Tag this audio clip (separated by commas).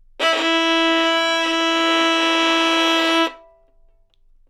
Bowed string instrument, Music, Musical instrument